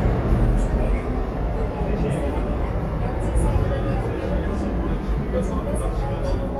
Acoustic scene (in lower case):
subway train